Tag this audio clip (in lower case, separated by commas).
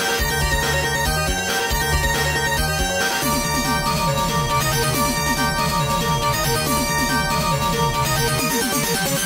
music, video game music